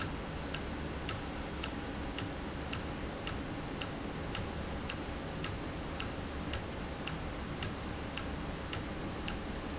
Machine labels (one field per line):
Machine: valve